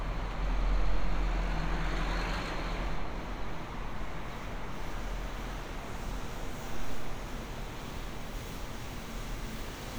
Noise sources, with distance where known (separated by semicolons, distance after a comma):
large-sounding engine